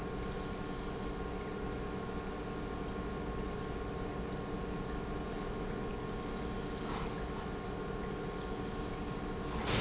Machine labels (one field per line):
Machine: pump